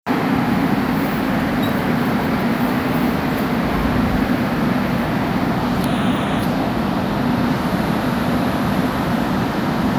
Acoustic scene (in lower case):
subway station